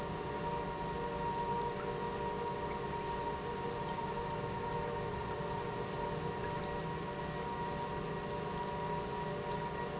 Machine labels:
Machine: pump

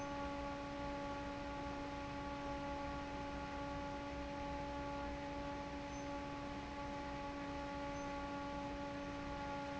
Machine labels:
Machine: fan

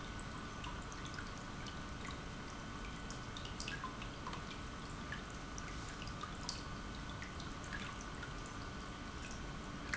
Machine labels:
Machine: pump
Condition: normal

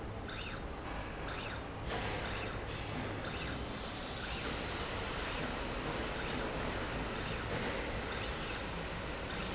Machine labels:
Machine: slide rail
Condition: normal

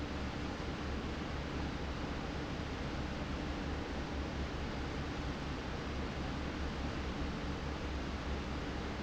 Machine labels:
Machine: fan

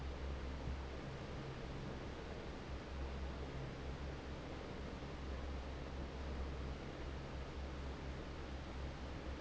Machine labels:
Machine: fan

